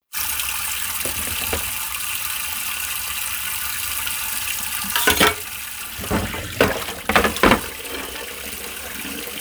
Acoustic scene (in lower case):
kitchen